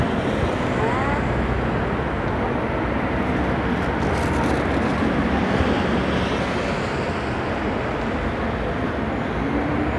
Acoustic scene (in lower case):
street